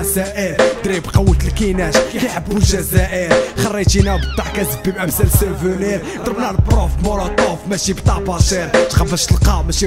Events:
0.0s-0.5s: rapping
0.0s-9.8s: music
0.7s-3.3s: rapping
3.5s-9.8s: rapping
3.9s-5.1s: squeak
5.2s-5.7s: laughter

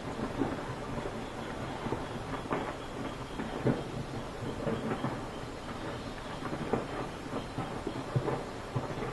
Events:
0.0s-9.1s: background noise
0.0s-9.1s: explosion

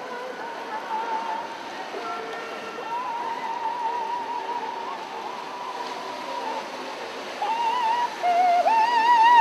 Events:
0.0s-1.5s: yodeling
0.0s-9.4s: speedboat
0.0s-9.4s: water
1.7s-6.6s: yodeling
7.4s-9.4s: yodeling

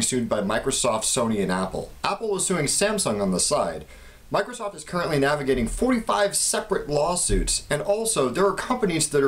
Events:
0.0s-9.2s: background noise
0.1s-1.8s: man speaking
2.0s-3.8s: man speaking
4.4s-9.2s: man speaking

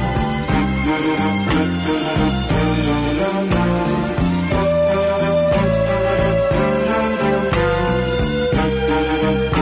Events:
0.0s-9.6s: music

